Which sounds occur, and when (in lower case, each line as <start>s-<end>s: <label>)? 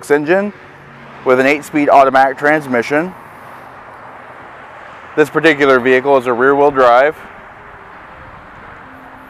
0.0s-0.5s: male speech
0.0s-9.2s: motor vehicle (road)
1.2s-3.2s: male speech
5.1s-7.2s: male speech